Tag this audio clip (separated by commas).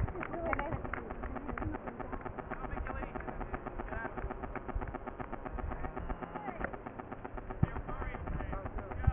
outside, rural or natural, Run, Speech